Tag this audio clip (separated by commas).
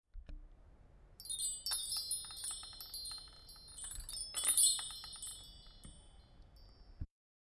Bell, Chime